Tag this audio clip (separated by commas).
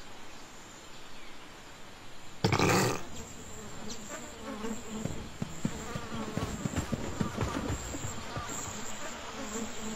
outside, rural or natural